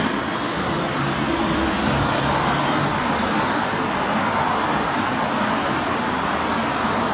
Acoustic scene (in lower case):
street